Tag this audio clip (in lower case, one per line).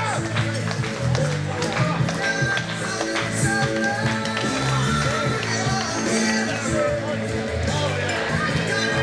speech
music